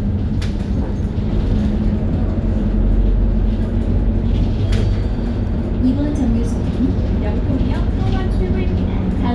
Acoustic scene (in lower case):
bus